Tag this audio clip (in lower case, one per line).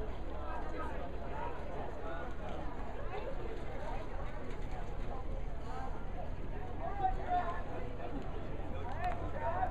outside, urban or man-made
speech